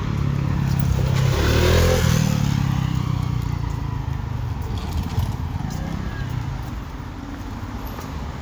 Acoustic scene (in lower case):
residential area